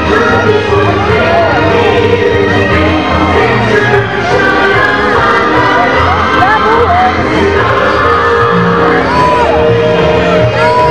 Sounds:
music
speech
outside, rural or natural

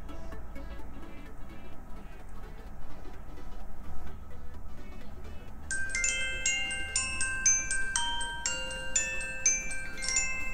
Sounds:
marimba
mallet percussion
glockenspiel

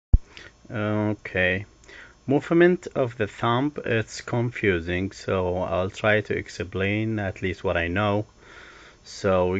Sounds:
speech

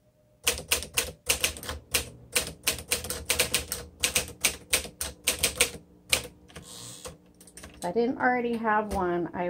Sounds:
typing on typewriter

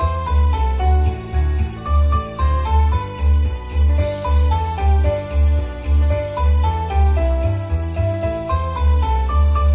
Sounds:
christmas music
music

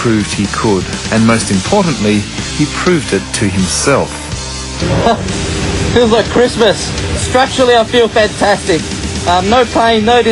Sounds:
music
speech

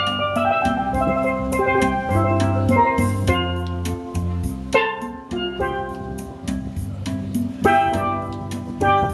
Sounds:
playing steelpan

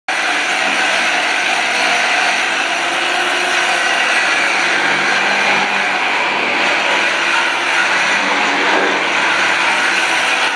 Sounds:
inside a small room

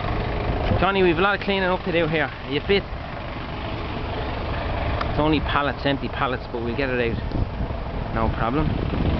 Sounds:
truck
vehicle
speech

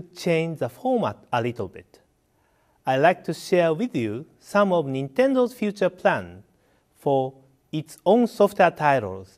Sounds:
speech

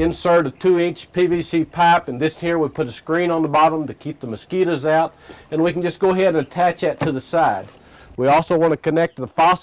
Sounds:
speech

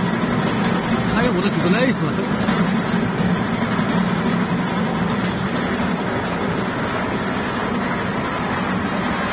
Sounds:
speech

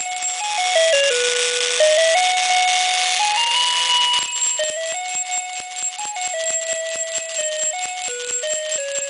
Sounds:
jingle bell
christmas music
music

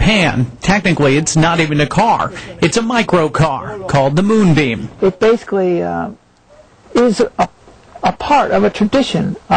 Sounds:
speech

